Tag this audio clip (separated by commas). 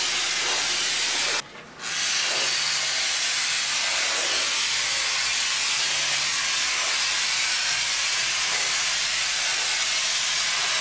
Spray